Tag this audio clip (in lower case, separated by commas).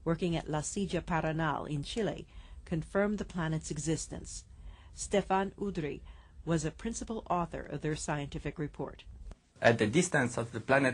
speech